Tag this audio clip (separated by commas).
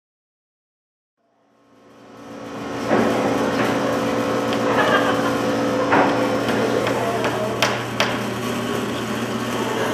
Hammer